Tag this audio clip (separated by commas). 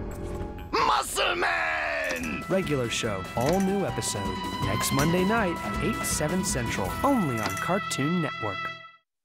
Music, Speech